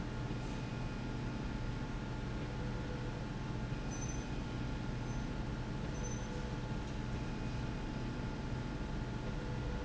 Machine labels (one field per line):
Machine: slide rail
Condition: normal